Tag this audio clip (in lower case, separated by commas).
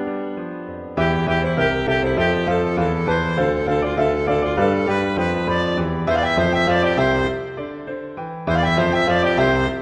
musical instrument, music